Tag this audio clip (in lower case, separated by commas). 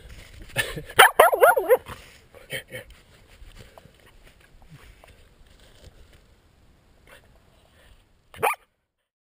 yip